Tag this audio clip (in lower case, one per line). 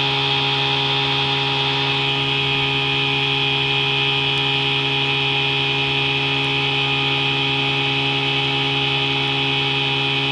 boat
vehicle
speedboat